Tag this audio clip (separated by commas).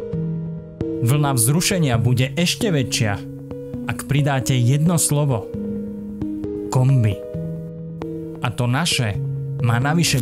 Speech, Music